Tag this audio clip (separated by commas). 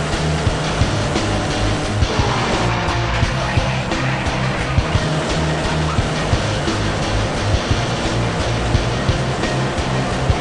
Car passing by